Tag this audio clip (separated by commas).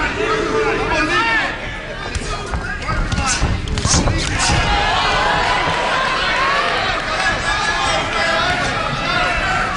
Speech, inside a large room or hall